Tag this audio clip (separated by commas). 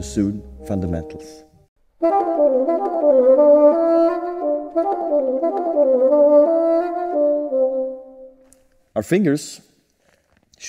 playing bassoon